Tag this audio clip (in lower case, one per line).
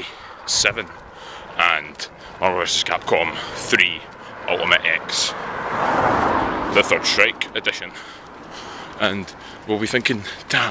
speech